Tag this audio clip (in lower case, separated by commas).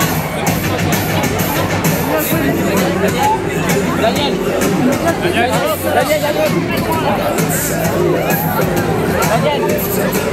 speech, music